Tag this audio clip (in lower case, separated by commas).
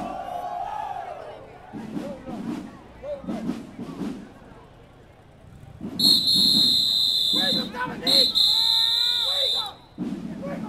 people marching